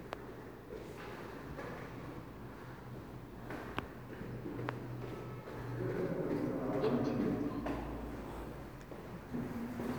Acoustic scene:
elevator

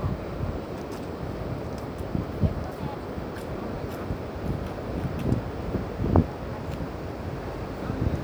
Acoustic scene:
park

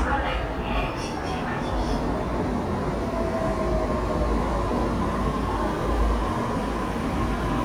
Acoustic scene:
subway station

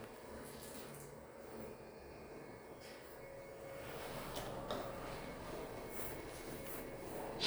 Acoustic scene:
elevator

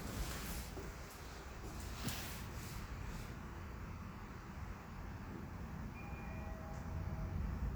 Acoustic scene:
elevator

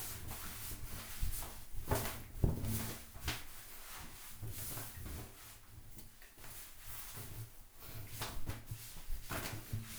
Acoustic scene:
restroom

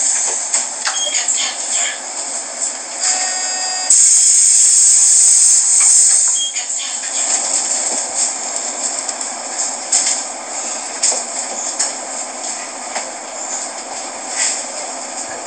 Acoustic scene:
bus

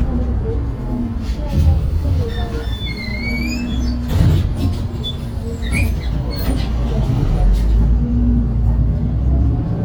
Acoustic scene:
bus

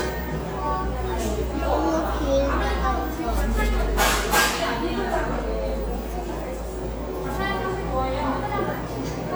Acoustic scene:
cafe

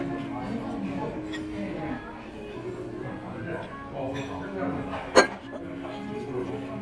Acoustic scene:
restaurant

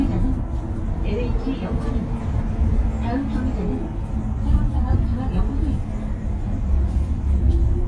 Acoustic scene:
bus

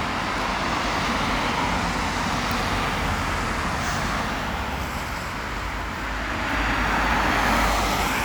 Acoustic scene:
street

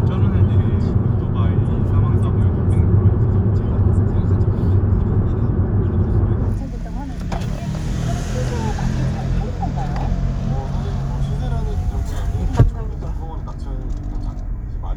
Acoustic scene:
car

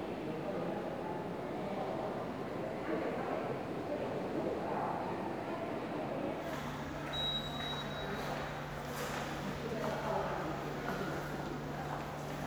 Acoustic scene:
subway station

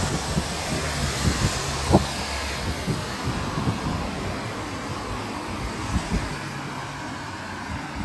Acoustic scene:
street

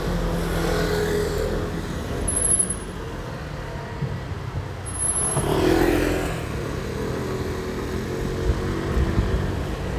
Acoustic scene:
street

